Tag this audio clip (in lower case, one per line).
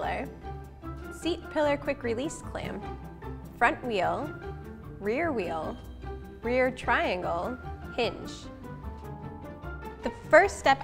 music
speech